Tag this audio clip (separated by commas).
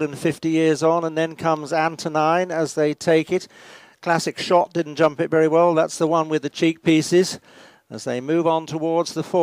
Speech